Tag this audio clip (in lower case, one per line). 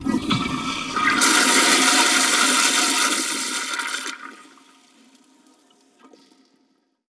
domestic sounds
toilet flush